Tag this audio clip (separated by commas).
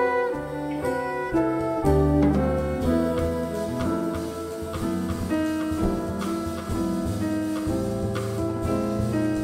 Steel guitar, Music, Drum